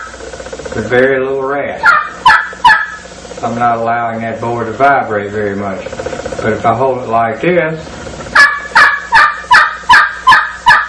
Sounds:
Speech

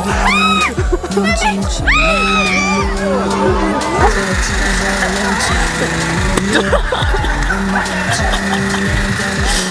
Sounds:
Speech, Music

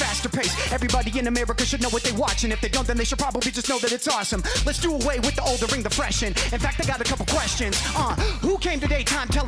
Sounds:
rapping

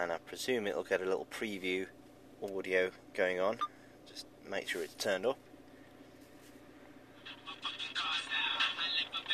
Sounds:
Speech, Music

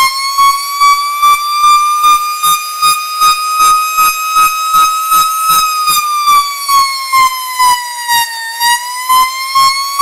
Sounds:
Siren

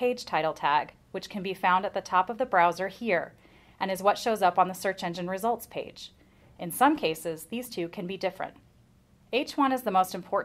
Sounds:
Speech

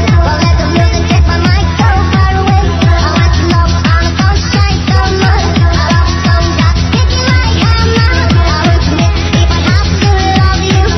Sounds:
Music

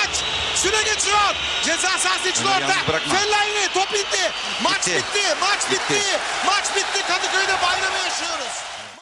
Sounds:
Speech

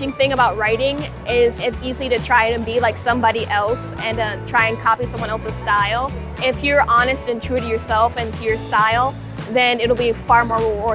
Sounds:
Music, Speech

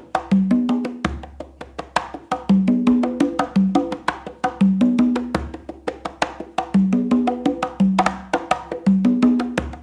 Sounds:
playing timbales

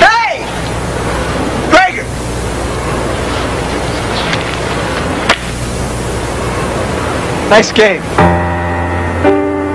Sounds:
Speech, Music

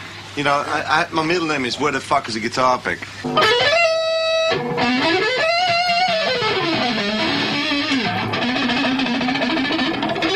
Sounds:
Speech, Plucked string instrument, Music, Strum, Guitar, Musical instrument

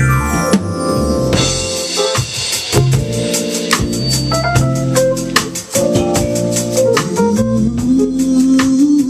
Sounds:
Music

